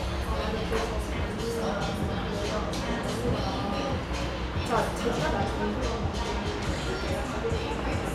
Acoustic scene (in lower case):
cafe